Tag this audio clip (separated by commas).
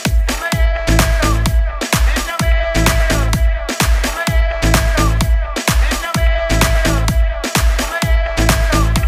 Music